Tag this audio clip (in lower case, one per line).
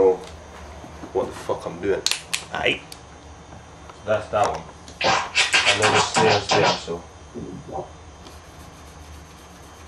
scratching (performance technique)
speech